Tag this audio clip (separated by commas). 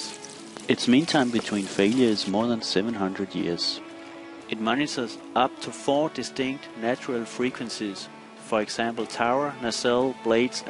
Speech, Music